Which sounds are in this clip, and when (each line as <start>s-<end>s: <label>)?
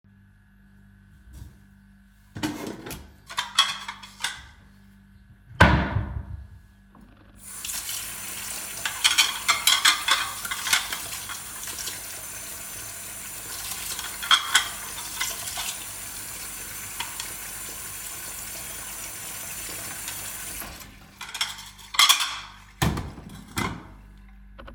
2.2s-3.1s: wardrobe or drawer
3.2s-4.6s: cutlery and dishes
5.4s-6.6s: wardrobe or drawer
7.4s-20.9s: running water
8.8s-11.0s: cutlery and dishes
14.1s-15.8s: cutlery and dishes
16.9s-17.3s: cutlery and dishes
21.1s-23.9s: cutlery and dishes